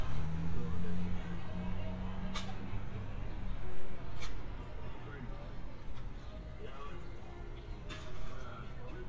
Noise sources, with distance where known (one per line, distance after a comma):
medium-sounding engine, far
person or small group talking